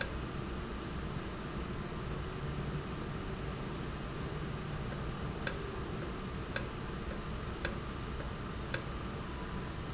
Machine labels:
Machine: valve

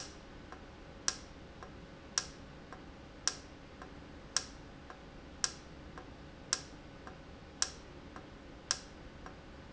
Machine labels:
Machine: valve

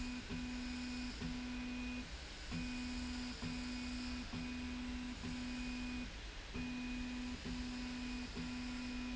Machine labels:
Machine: slide rail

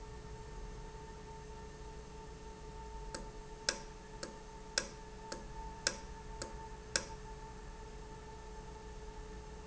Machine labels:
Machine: valve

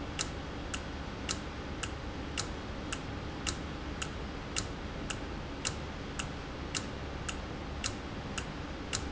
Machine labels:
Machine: valve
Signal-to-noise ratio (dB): -6 dB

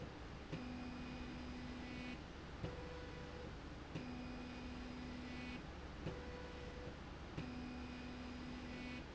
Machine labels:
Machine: slide rail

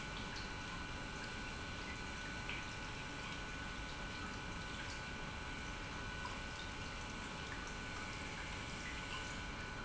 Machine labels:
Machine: pump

